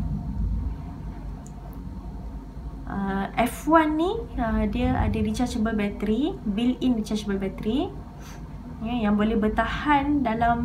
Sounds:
Speech

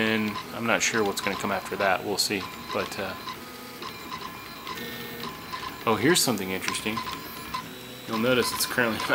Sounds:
Printer, Speech

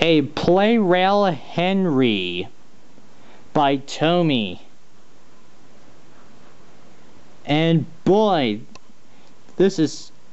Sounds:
Speech

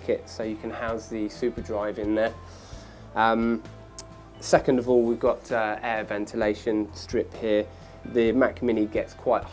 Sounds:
Speech, Music

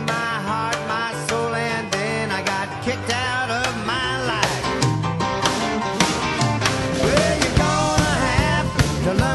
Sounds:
Music, Rock and roll

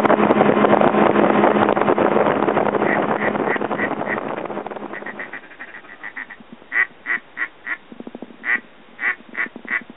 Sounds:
Quack, Animal, Duck, duck quacking

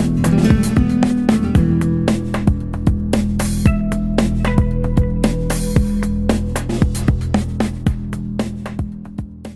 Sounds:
Music

